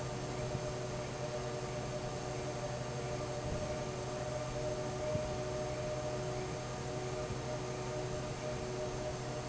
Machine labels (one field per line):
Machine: fan